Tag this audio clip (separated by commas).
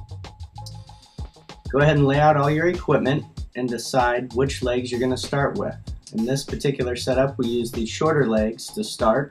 Music, Speech